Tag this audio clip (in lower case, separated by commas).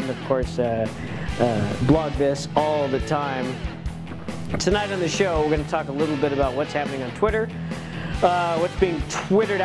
speech, music